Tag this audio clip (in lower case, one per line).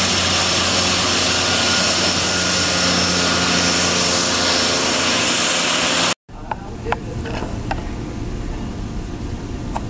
aircraft
fixed-wing aircraft
vehicle